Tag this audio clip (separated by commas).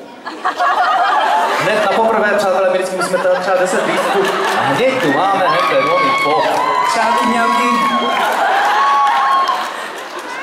Speech